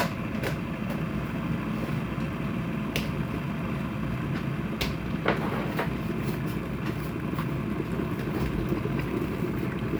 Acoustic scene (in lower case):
kitchen